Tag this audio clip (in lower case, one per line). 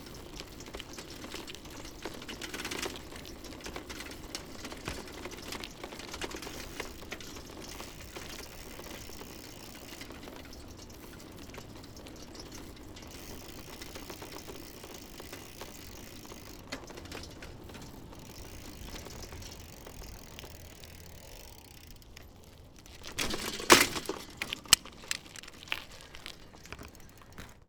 bicycle
vehicle